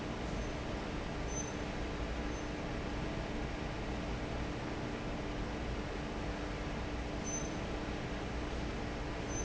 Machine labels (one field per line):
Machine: fan